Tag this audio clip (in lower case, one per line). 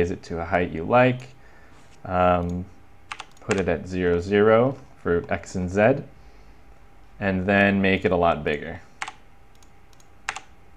speech